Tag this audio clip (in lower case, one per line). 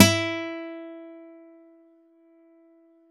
plucked string instrument
guitar
acoustic guitar
music
musical instrument